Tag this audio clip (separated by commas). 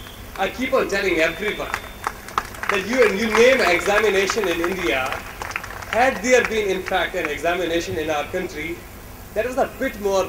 Speech, man speaking